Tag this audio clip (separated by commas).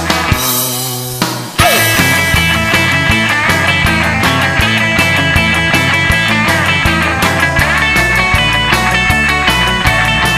Music, Psychedelic rock